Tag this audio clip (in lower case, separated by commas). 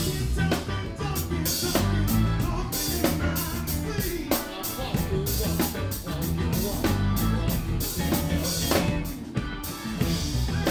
rimshot, drum kit, drum, snare drum, percussion, bass drum